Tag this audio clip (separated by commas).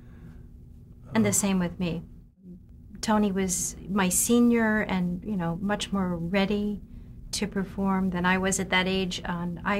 Speech, inside a small room